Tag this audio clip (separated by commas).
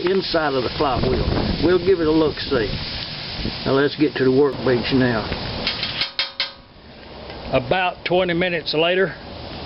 Speech